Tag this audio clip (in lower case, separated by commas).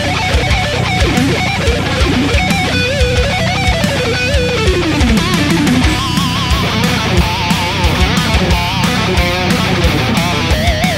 music, musical instrument, guitar, acoustic guitar